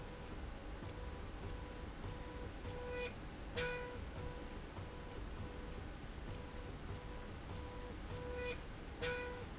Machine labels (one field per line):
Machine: slide rail